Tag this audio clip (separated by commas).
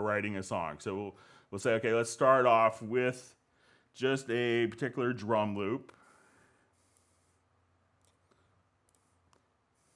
Speech